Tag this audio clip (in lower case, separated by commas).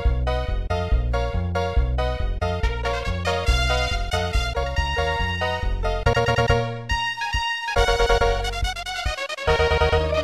music